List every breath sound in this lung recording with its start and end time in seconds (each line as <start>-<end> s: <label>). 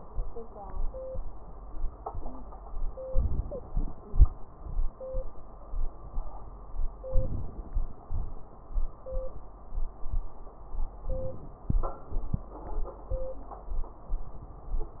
3.03-3.69 s: inhalation
3.03-3.69 s: wheeze
3.67-4.33 s: exhalation
3.67-4.33 s: crackles
7.06-7.72 s: inhalation
11.10-11.77 s: inhalation
11.10-11.77 s: crackles